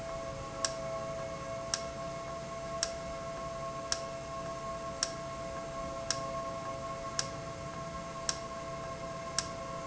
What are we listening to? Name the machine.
valve